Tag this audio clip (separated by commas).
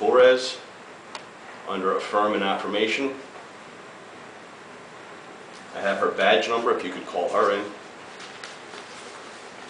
Speech